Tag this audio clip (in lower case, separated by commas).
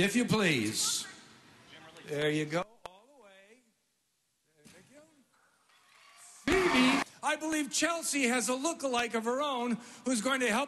speech